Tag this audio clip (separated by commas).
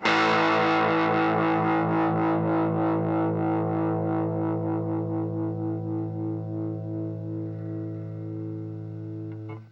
Music, Plucked string instrument, Guitar, Musical instrument